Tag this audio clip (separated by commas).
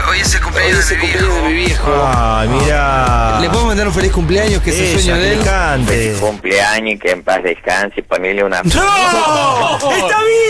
Speech, Music